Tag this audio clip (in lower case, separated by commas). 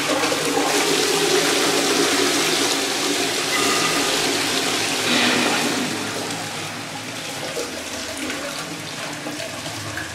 toilet flushing, toilet flush